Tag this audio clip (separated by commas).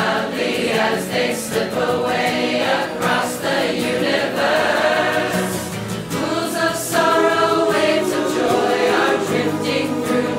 singing choir